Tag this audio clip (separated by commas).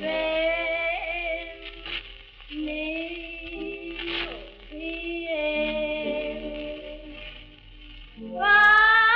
Music, Lullaby